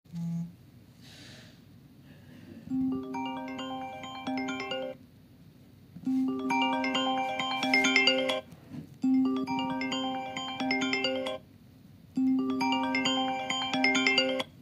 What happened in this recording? I put the phone on the bed and then the phone rings